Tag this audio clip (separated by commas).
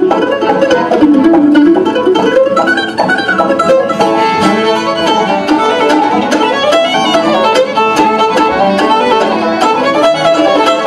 Music, Rhythm and blues